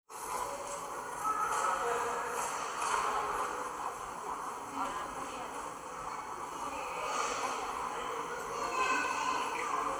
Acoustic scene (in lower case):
subway station